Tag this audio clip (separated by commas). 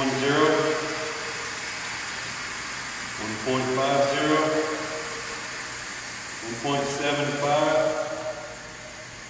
Speech